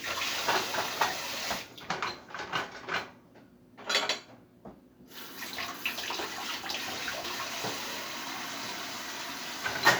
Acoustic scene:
kitchen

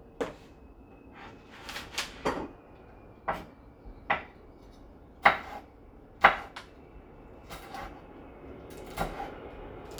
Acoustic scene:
kitchen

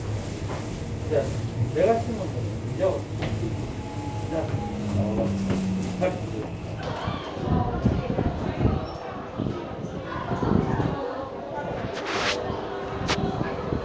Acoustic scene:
subway station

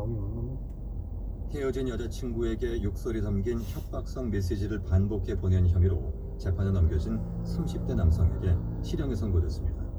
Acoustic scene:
car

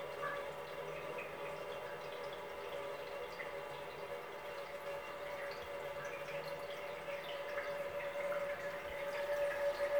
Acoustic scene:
restroom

